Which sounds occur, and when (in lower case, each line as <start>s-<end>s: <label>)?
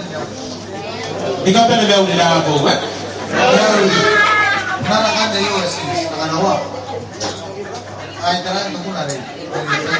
0.0s-9.9s: speech babble
1.3s-2.9s: man speaking
4.8s-6.6s: man speaking
7.1s-7.4s: generic impact sounds
7.7s-7.9s: generic impact sounds
8.1s-9.3s: man speaking
9.0s-9.2s: generic impact sounds
9.5s-9.9s: laughter